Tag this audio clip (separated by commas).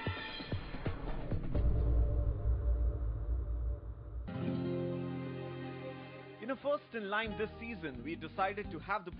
Music, Speech